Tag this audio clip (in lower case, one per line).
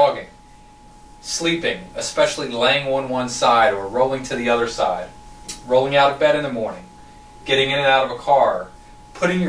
speech